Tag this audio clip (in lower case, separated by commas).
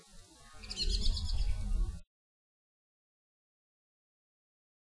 bird, chirp, wild animals, animal, bird song